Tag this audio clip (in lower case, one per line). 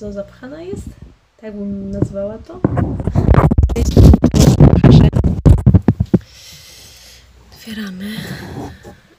speech
drawer open or close